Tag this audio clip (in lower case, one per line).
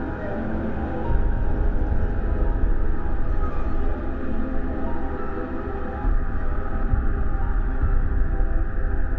theme music
music